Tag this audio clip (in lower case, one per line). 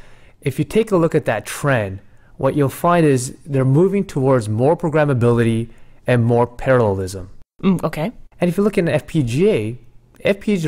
speech